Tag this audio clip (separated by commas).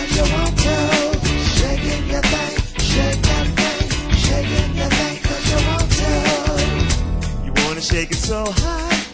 Music